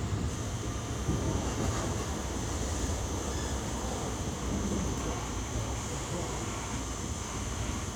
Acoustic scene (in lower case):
subway train